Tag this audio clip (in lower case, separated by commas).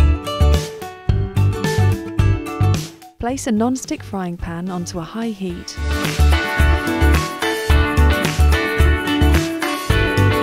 speech, music